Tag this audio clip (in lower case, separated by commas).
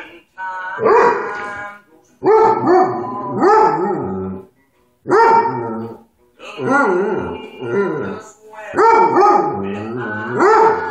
dog howling